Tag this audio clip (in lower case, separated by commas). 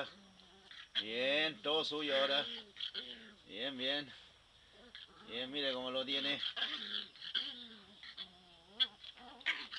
animal, speech, dog